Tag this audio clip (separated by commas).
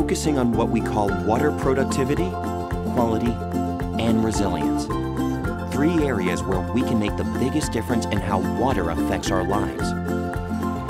Speech, Music